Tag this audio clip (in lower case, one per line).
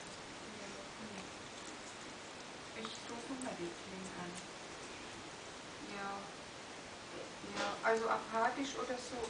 speech